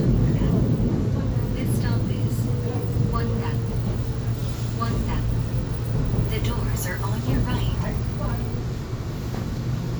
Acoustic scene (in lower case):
subway train